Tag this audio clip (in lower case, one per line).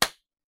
hands
clapping